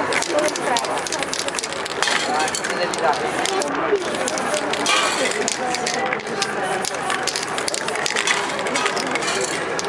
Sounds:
Spray

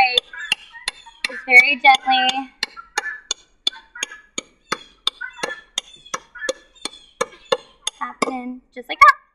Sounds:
Animal, Speech

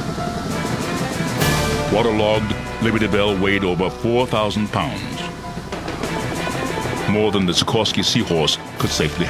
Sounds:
Speech, Music

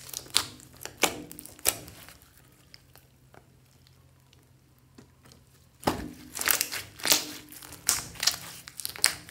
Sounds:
squishing water

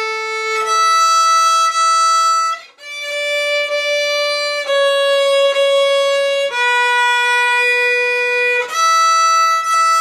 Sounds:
inside a small room, Violin, Bowed string instrument, Music, Musical instrument

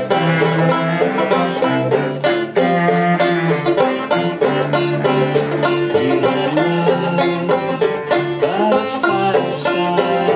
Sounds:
Music, playing banjo, Banjo, Country

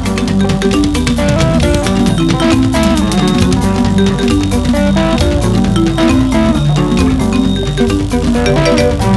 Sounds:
Music, Music of Africa

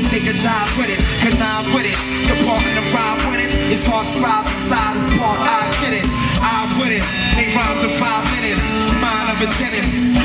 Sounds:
Music, Singing

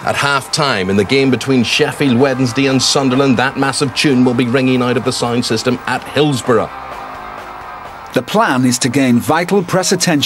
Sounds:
Speech, Plucked string instrument, Musical instrument, Strum, Music, Guitar, Acoustic guitar

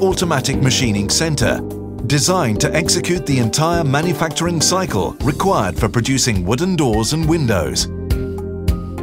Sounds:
Speech, Music

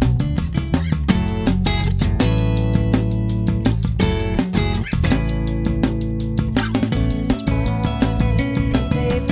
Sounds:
Music

